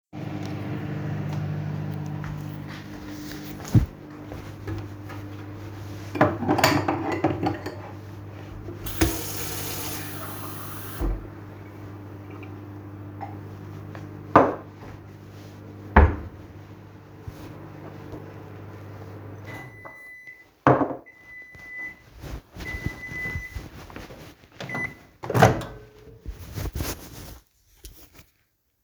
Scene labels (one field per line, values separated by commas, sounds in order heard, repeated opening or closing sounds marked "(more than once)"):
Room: kitchen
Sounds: microwave, cutlery and dishes, running water, wardrobe or drawer